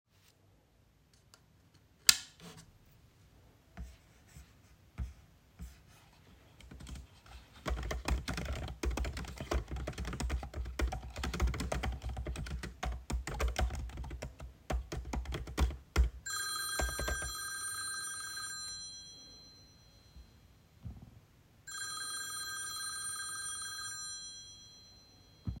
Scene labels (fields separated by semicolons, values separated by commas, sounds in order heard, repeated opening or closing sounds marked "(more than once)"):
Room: office; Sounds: light switch, keyboard typing, phone ringing